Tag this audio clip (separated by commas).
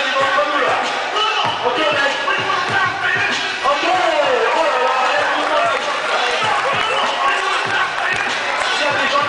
Speech, Music